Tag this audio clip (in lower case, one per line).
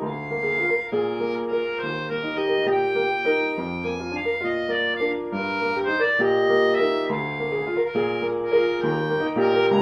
tender music
music